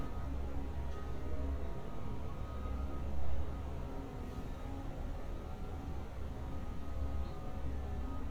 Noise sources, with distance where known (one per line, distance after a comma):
engine of unclear size
unidentified alert signal, far